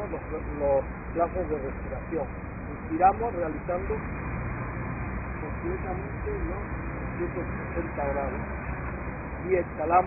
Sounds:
Speech

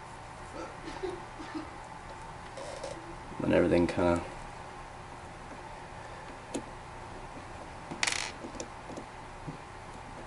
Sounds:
Speech

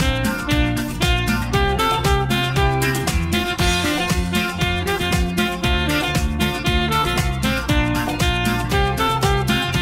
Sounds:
Music, Music for children

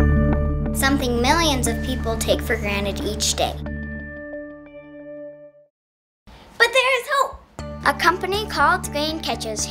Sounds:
Music, Speech

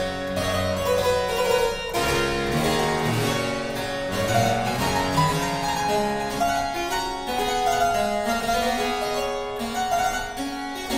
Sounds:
Harpsichord, Music

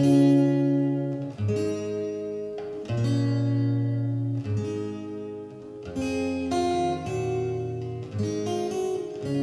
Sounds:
Strum, Music, Guitar, Musical instrument, Acoustic guitar, Plucked string instrument

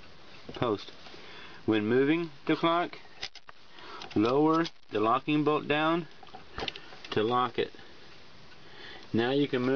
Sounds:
Speech

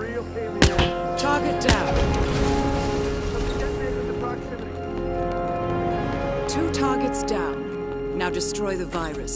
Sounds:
Speech, Music

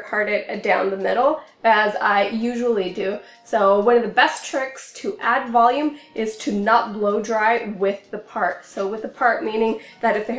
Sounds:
hair dryer drying

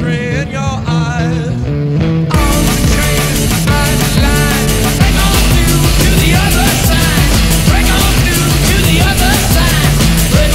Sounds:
Music

